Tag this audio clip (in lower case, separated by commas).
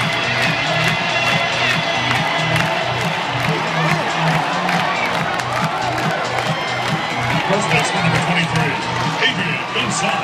music, speech